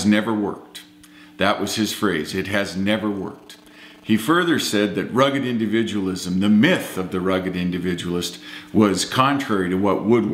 A male having a speech